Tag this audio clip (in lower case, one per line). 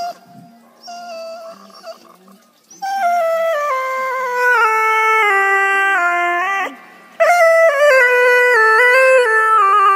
music
pets
inside a small room